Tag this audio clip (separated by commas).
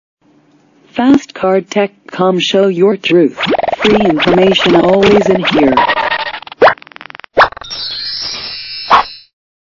Speech